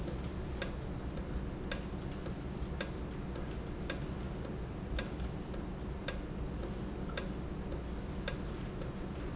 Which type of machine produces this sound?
valve